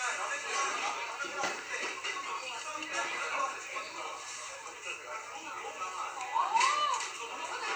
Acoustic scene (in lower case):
restaurant